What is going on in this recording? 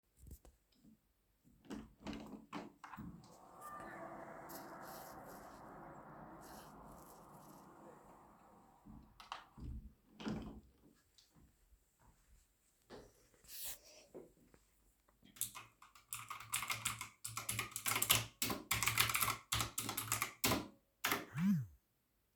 I opened the window. Then I put away a peper and I started typing. I got a notification on my phone.